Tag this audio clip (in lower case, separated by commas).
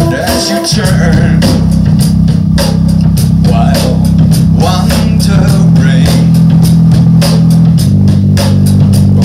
music, playing drum kit, drum kit, drum, musical instrument